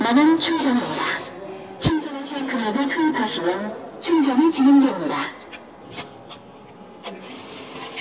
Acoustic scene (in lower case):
subway station